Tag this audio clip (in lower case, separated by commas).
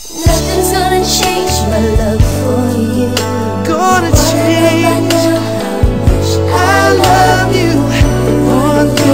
music